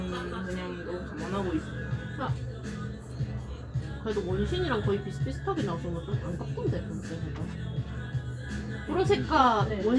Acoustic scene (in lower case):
cafe